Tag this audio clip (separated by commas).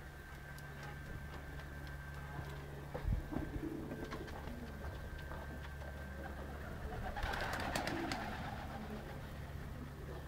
outside, urban or man-made, Bird, Pigeon